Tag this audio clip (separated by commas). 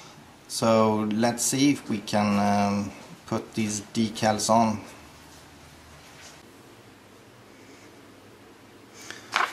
Speech